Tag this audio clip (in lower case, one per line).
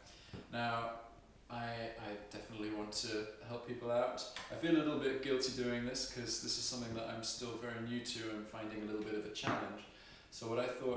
speech